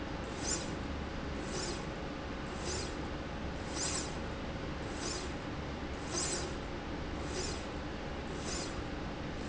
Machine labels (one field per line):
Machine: slide rail